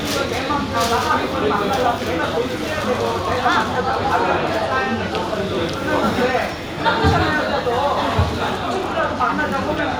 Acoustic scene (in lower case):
crowded indoor space